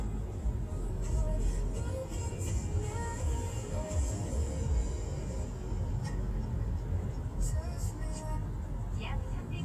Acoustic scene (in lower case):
car